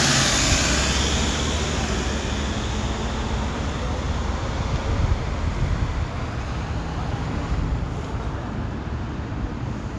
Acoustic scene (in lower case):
street